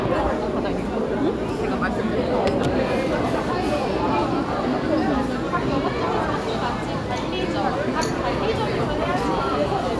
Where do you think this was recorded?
in a restaurant